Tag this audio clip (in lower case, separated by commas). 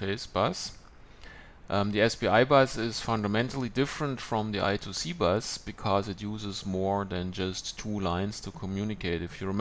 speech